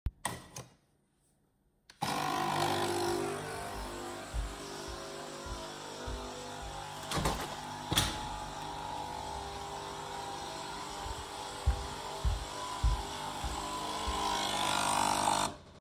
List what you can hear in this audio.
cutlery and dishes, coffee machine, footsteps, window